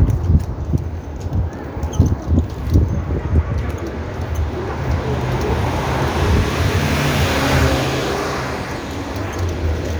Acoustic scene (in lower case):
street